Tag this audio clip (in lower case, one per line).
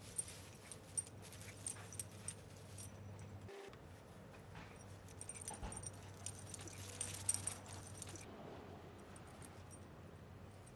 domestic animals
animal